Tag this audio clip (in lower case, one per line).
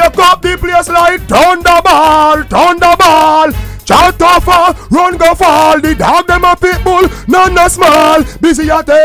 music